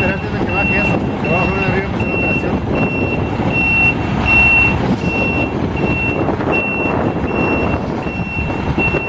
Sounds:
reversing beeps, truck, speech, vehicle

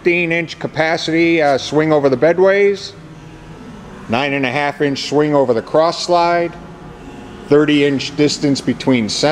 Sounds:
speech

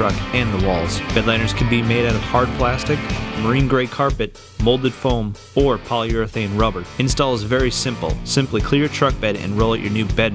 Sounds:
speech, music

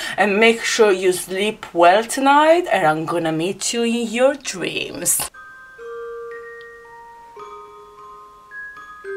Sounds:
glockenspiel, speech, music, inside a small room

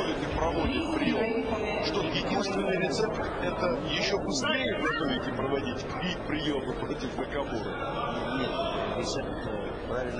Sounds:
speech

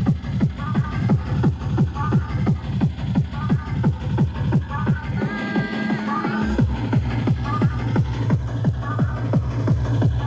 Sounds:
music

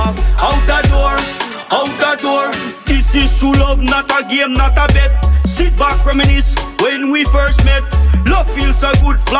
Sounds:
music, rhythm and blues

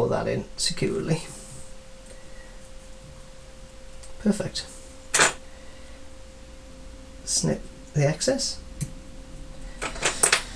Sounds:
speech

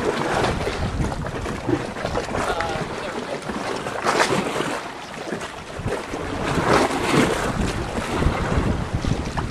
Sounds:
speech, flap

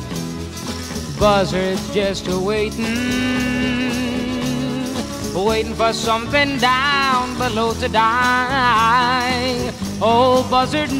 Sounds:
music

